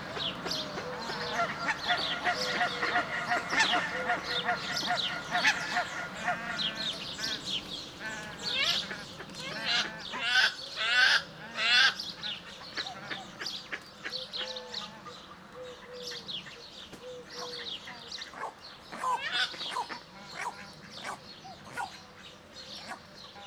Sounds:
Animal, livestock, Fowl

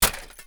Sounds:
Glass, Shatter

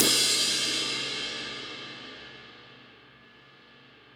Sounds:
Cymbal, Musical instrument, Crash cymbal, Music, Percussion

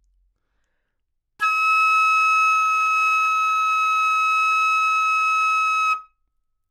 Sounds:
Music, Musical instrument, woodwind instrument

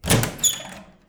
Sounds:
Squeak

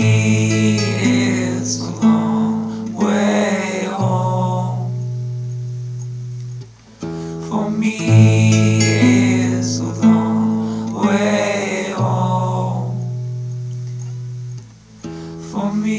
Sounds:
Music, Musical instrument, Acoustic guitar, Plucked string instrument, Guitar

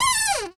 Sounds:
Cupboard open or close, home sounds

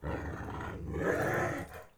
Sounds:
pets, Growling, Animal, Dog

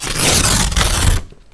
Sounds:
Tearing

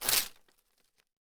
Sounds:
Tearing

